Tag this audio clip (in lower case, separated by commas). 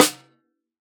percussion, snare drum, drum, musical instrument, music